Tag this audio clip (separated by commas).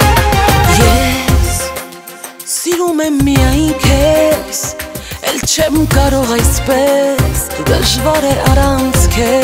Music, Soundtrack music